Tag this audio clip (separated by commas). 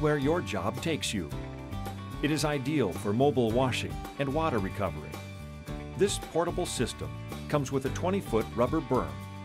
Speech, Music